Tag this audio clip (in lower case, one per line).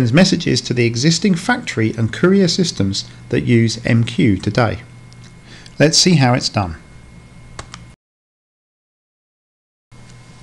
speech